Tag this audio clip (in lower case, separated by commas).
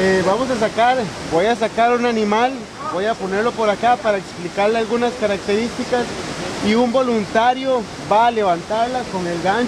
speech, outside, rural or natural